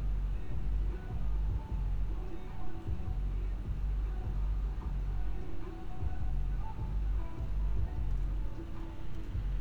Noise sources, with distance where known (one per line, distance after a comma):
music from an unclear source